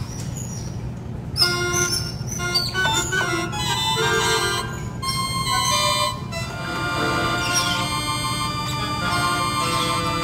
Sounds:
playing glockenspiel

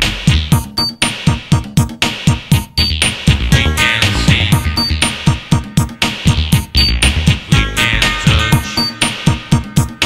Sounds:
music

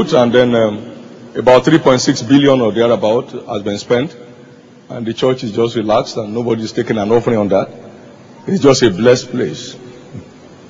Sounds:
speech

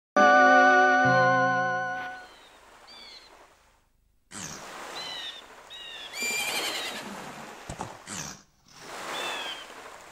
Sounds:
bird
bird vocalization

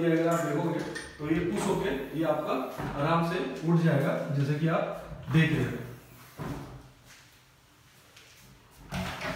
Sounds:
sliding door

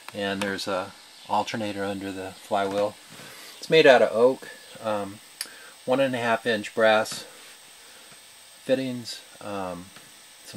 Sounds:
speech

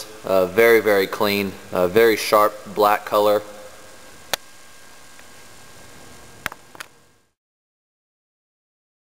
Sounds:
speech

